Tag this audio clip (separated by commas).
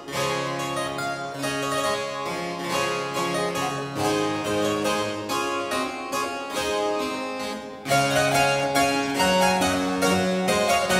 Music